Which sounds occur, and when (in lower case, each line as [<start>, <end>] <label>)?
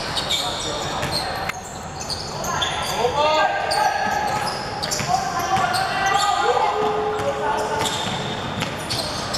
[0.00, 9.35] crowd
[0.11, 1.47] squeal
[0.11, 1.47] man speaking
[0.91, 1.18] basketball bounce
[2.04, 3.38] squeal
[2.50, 3.45] man speaking
[3.66, 3.99] squeal
[4.38, 5.14] squeal
[4.81, 5.01] basketball bounce
[5.45, 5.64] basketball bounce
[5.69, 6.71] squeal
[7.01, 7.30] basketball bounce
[7.78, 8.05] basketball bounce
[7.78, 9.35] squeal
[8.46, 8.71] basketball bounce